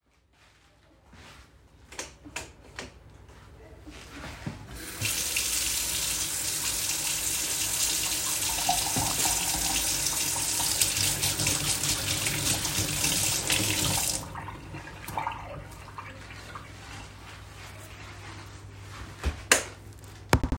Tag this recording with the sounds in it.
footsteps, light switch, running water